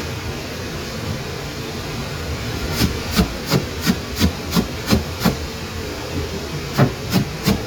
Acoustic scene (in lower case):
kitchen